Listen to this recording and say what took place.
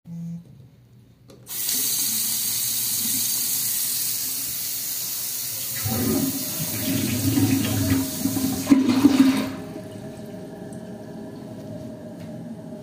I opened the sink and while the water was going out I flush the toilet, so there was some overlapping and I moved from the sink to the toilet while recording